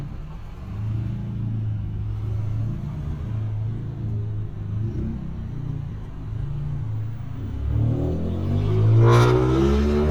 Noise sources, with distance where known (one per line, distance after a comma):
medium-sounding engine, near